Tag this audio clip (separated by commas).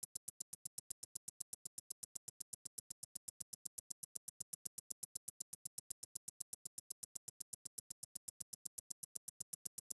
Tick-tock, Clock, Mechanisms